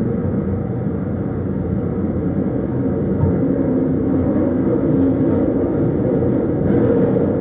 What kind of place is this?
subway train